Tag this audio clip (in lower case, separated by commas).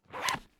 domestic sounds, zipper (clothing)